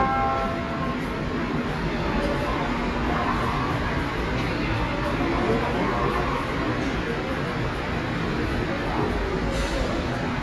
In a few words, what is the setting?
subway station